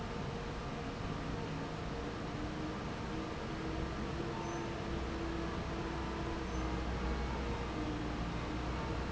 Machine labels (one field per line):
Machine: fan